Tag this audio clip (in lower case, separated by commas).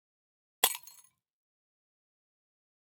glass, shatter